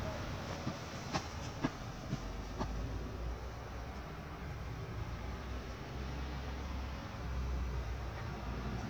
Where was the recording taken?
in a residential area